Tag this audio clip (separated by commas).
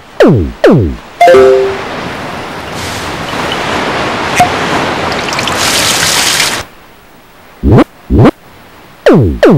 Music